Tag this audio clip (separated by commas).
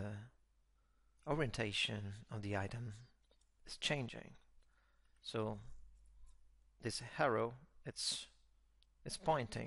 inside a small room, Speech